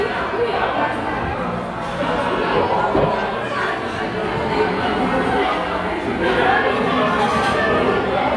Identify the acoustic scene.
crowded indoor space